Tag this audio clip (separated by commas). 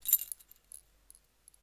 home sounds, Keys jangling